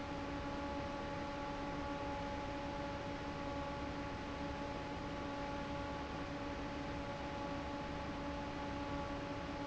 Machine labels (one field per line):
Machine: fan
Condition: normal